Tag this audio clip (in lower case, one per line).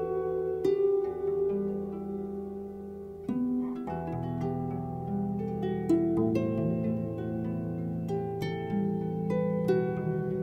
music